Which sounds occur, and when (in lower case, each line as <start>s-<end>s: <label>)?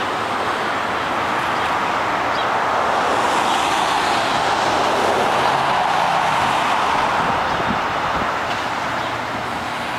0.0s-0.6s: human voice
0.0s-9.9s: traffic noise
0.0s-9.9s: wind
1.6s-1.7s: generic impact sounds
2.3s-2.4s: squeal
7.4s-7.5s: squeal
7.5s-7.8s: wind noise (microphone)
8.0s-8.3s: wind noise (microphone)
8.4s-8.6s: generic impact sounds
9.0s-9.1s: squeal